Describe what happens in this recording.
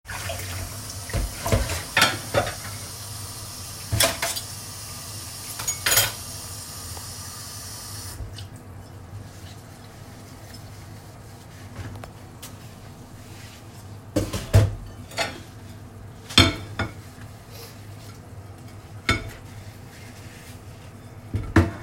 I was washing the dishes after dinner in the kitchen.